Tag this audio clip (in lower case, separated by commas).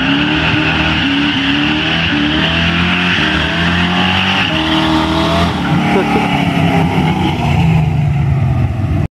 truck, vehicle